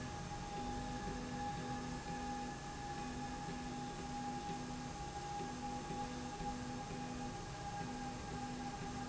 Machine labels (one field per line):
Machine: slide rail